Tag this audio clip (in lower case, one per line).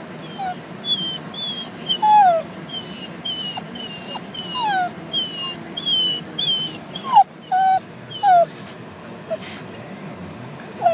dog whimpering